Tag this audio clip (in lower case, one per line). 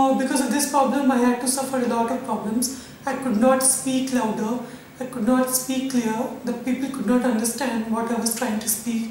male speech
speech